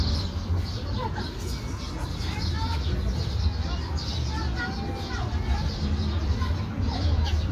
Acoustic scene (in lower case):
park